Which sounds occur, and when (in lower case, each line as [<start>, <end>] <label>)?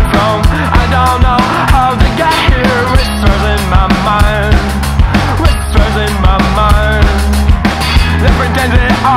[0.00, 0.48] male singing
[0.00, 9.15] music
[0.48, 0.67] breathing
[0.70, 4.51] male singing
[5.22, 5.42] male singing
[5.71, 7.31] male singing
[8.17, 9.15] male singing